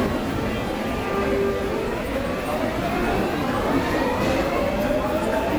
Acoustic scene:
subway station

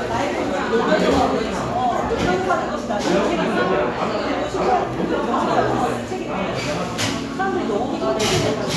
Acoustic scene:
cafe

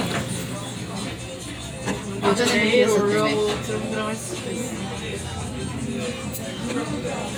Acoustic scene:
crowded indoor space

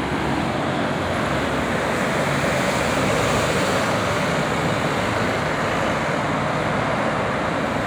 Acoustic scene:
street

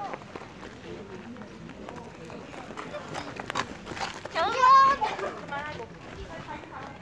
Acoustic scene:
park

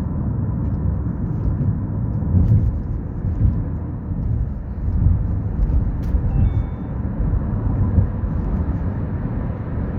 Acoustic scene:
car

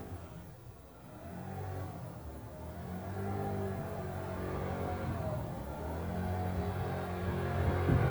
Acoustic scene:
residential area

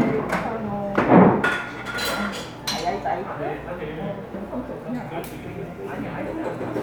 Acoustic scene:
cafe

